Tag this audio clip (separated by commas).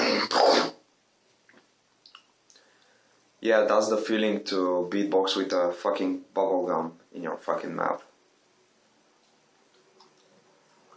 Speech